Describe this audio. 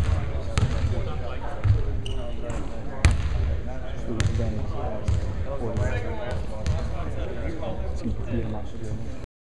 A ball bounces and shoes squeak on hardwood and men can be heard mumbling